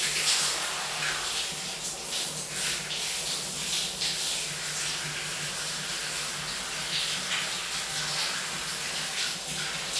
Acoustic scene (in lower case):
restroom